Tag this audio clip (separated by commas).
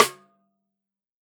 Percussion, Music, Musical instrument, Drum, Snare drum